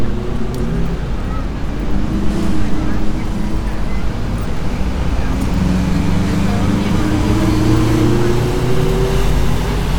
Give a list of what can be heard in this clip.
large-sounding engine